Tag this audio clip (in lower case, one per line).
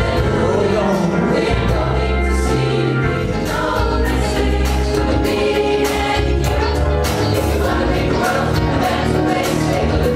music
vocal music
choir